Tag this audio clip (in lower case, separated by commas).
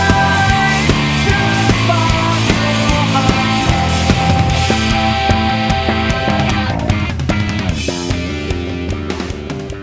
music